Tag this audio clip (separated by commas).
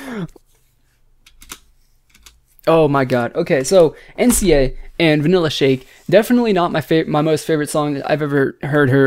Speech, inside a small room